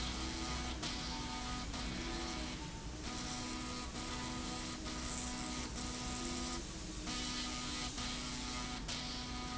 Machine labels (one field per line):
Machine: slide rail